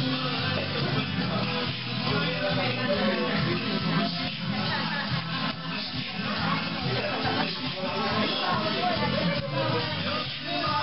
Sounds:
speech
music

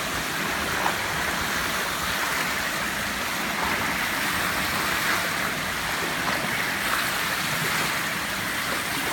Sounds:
swimming

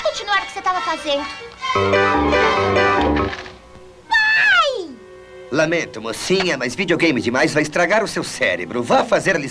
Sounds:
speech
music

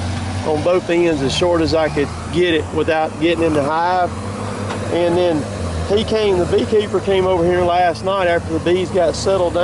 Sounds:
speech

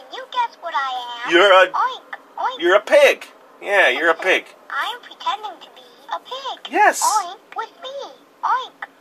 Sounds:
speech

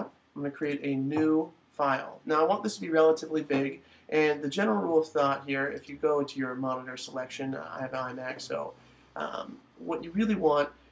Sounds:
speech

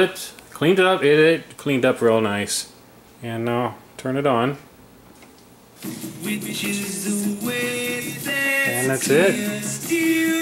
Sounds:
radio

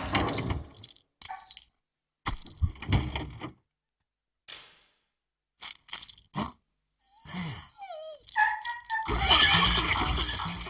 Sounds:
outside, rural or natural

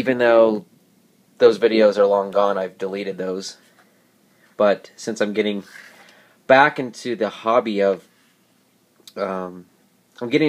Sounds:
speech

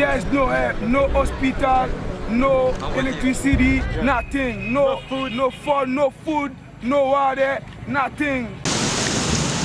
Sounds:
speech
music

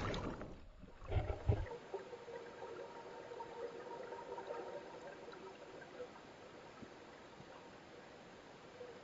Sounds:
speech

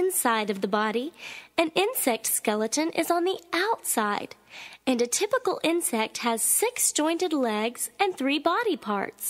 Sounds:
speech

